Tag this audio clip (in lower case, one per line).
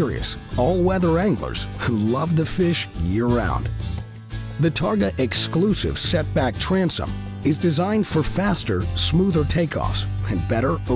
speech
music